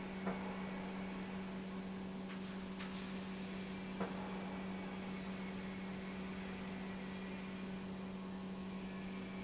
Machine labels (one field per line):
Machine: pump